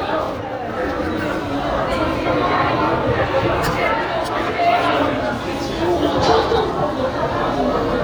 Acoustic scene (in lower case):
subway station